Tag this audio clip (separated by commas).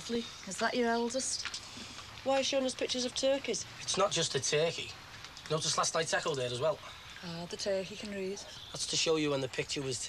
Speech